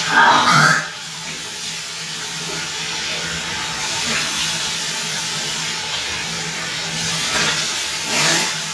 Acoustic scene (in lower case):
restroom